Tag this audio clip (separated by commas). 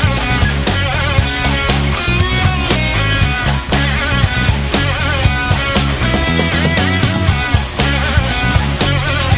Music, Video game music